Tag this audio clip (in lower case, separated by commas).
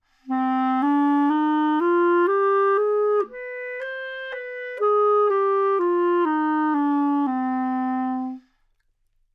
musical instrument, music, wind instrument